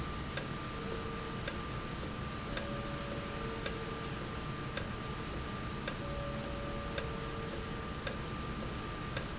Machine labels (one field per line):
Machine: valve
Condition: normal